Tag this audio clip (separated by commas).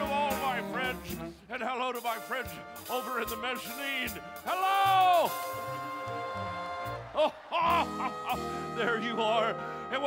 Speech, Music